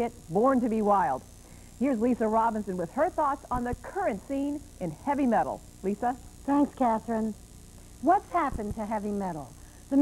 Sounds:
speech

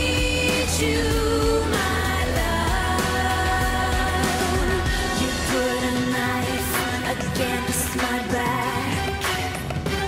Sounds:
singing

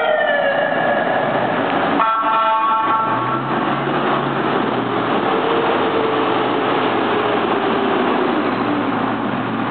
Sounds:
siren, emergency vehicle

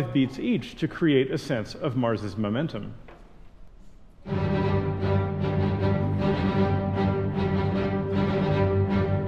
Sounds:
angry music, speech, music

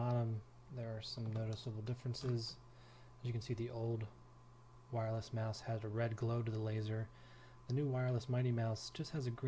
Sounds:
speech

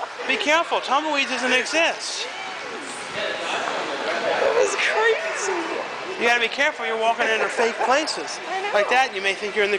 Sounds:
inside a public space, speech

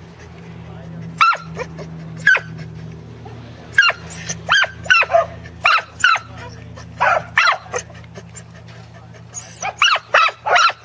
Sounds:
animal, bow-wow, pets, dog

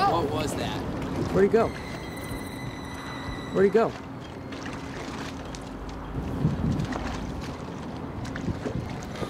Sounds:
water vehicle, speech, rowboat

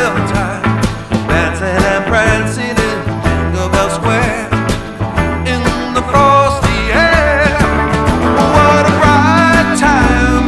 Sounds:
music

